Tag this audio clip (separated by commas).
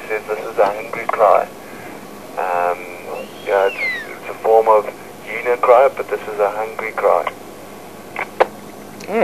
Owl